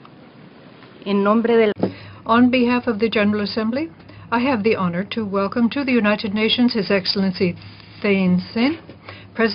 An adult female is speaking